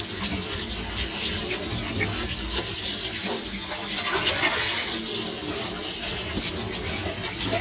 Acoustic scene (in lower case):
kitchen